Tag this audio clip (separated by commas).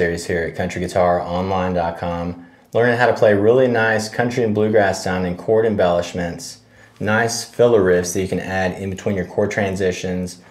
Speech